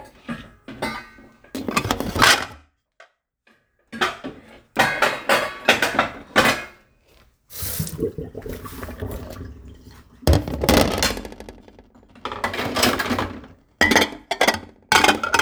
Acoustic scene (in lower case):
kitchen